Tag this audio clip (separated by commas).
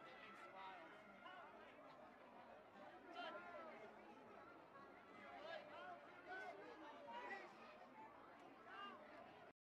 Speech